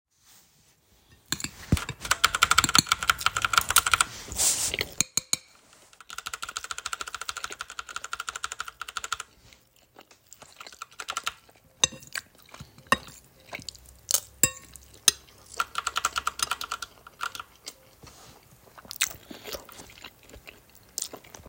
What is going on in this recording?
in this recording i was eating but also trying tio break my screen froze which explains the constant clicks while using the fork